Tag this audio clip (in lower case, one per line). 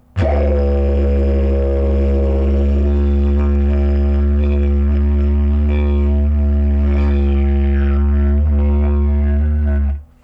music
musical instrument